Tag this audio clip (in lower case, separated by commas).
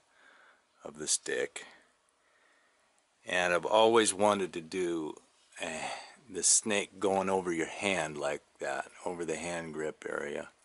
speech